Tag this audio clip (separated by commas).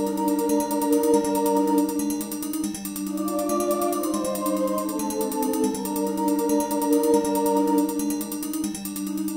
Synthesizer, Music